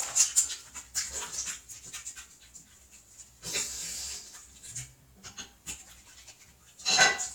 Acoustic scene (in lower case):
restroom